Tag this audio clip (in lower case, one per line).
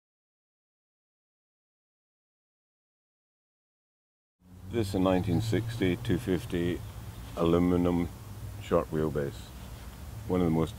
speech
outside, rural or natural